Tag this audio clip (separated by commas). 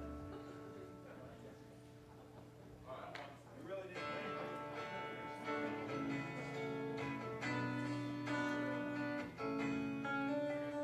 Speech, Music, Lullaby